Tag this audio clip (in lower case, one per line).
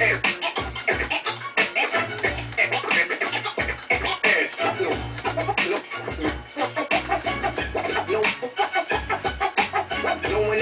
scratching (performance technique)
music